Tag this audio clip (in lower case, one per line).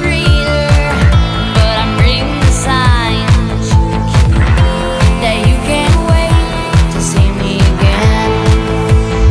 pop music
music
trance music